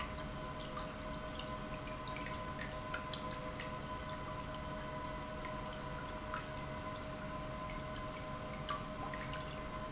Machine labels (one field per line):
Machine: pump